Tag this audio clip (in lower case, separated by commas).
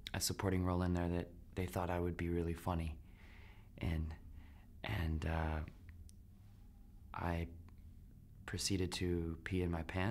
speech